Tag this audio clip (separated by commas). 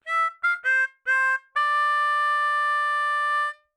Musical instrument, Harmonica, Music